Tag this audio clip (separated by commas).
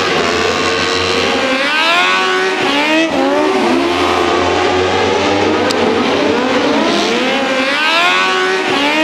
Car passing by